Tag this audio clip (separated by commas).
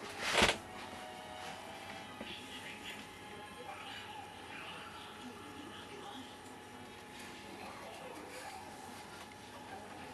Speech